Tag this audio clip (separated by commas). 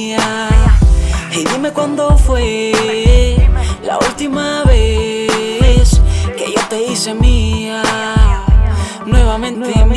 Soundtrack music, Music